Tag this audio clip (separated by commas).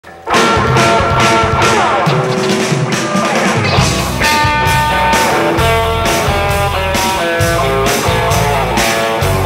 Music, Rock and roll